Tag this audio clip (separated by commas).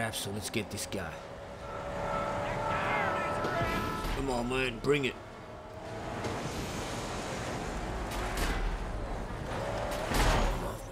Speech